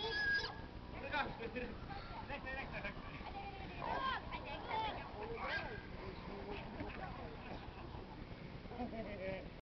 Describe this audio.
People speak and a pig oinks and squeals